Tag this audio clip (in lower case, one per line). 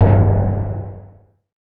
musical instrument
drum
percussion
music